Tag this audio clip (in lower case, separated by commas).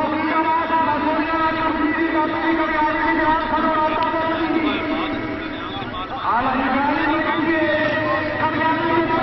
speech